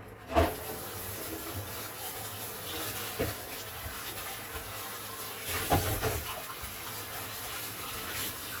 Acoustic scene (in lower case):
kitchen